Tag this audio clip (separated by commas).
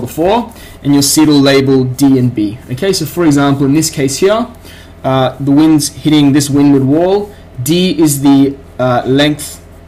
Speech